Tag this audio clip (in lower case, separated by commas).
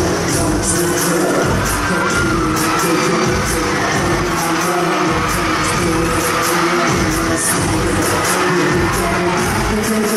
music